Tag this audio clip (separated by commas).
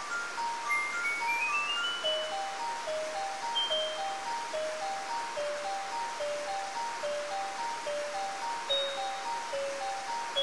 Video game music, Music